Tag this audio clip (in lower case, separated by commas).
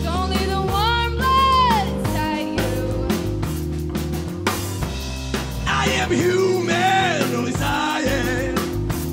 music